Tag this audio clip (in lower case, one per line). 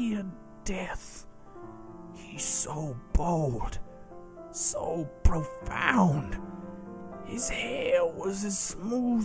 speech
man speaking
music